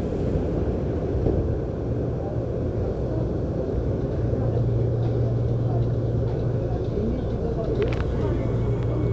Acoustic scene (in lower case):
subway train